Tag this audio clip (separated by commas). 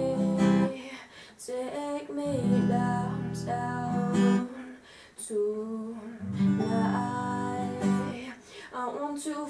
Plucked string instrument, Acoustic guitar, Music, Guitar, Musical instrument, Strum